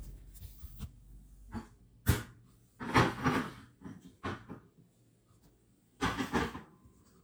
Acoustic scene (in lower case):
kitchen